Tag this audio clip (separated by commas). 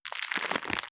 Crackle